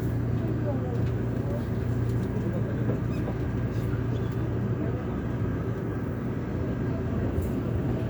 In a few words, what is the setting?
subway train